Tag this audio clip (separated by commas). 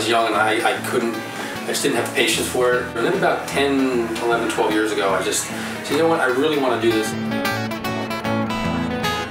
Guitar, Strum, Music, Speech, Plucked string instrument, Musical instrument, Acoustic guitar